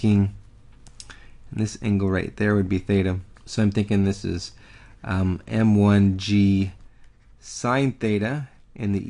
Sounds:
Speech

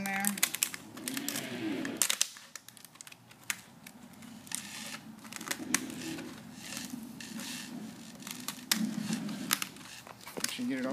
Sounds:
Speech

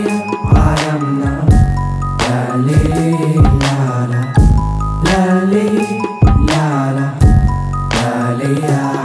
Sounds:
Music

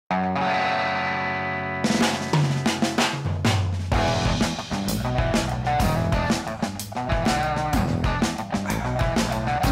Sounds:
Rimshot, Bass drum, Drum kit, Drum, Snare drum, Percussion

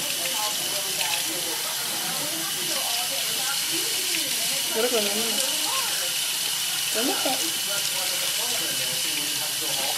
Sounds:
Speech

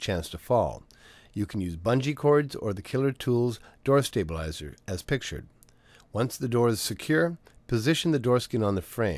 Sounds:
Speech

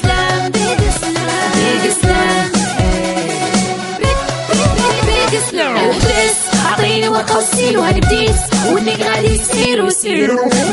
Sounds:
Music

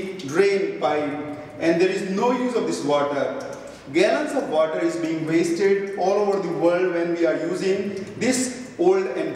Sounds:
Speech

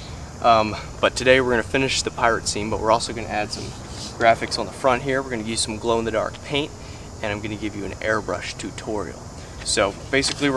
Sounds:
Speech

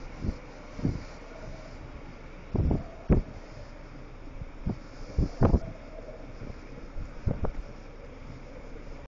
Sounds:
Wind noise (microphone), wind noise

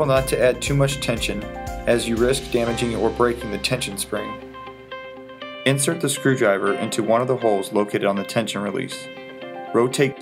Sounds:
Music, Speech

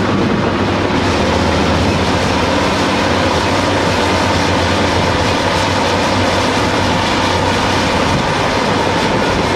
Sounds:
Vehicle

